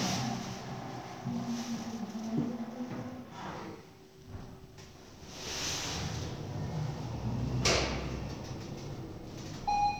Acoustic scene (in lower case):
elevator